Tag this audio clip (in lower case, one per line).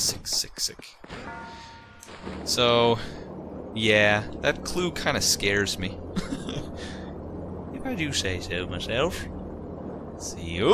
speech